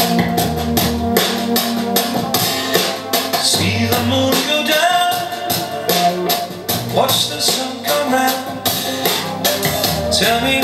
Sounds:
maraca, music, radio

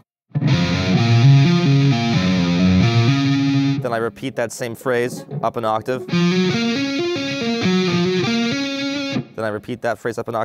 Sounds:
tapping guitar

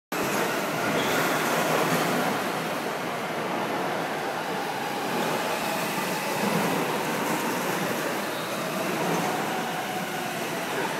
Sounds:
race car, vehicle, car

